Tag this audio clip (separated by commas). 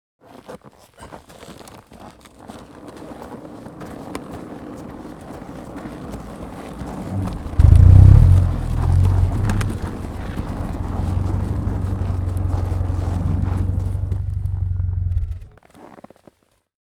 Motor vehicle (road), Vehicle